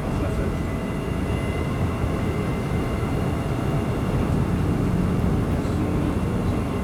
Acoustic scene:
subway train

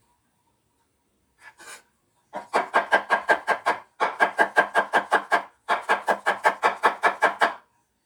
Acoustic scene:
kitchen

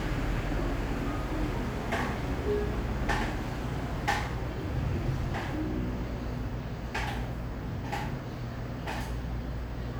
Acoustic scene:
cafe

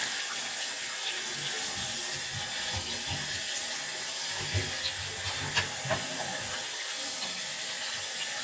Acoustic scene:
restroom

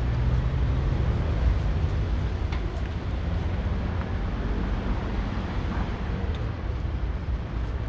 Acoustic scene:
street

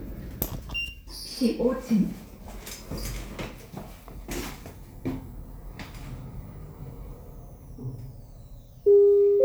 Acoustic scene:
elevator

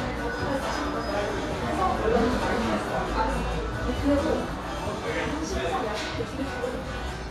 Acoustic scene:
cafe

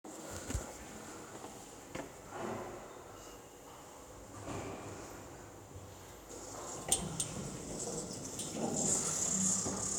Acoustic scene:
elevator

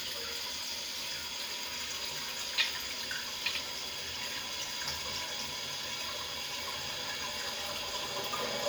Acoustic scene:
restroom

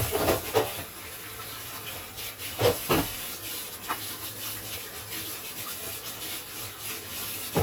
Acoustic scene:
kitchen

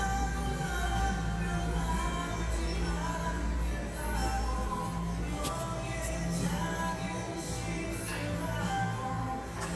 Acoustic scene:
cafe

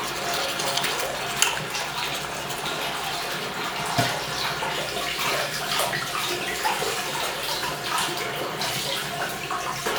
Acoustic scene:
restroom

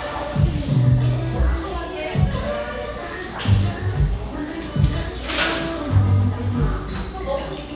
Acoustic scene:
cafe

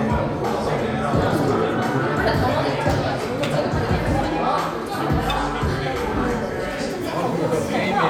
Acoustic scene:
crowded indoor space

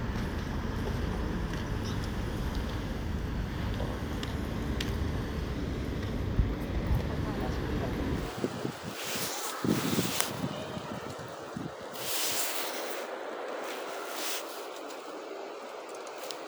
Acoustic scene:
residential area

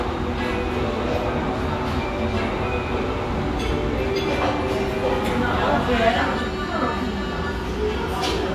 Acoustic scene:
restaurant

